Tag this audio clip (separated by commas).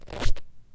Squeak